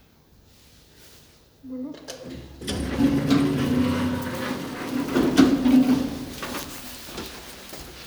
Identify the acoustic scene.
elevator